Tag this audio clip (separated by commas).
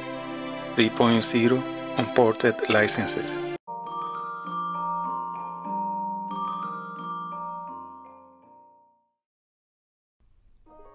xylophone, Glockenspiel, Mallet percussion